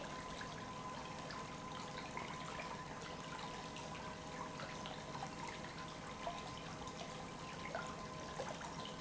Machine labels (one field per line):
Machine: pump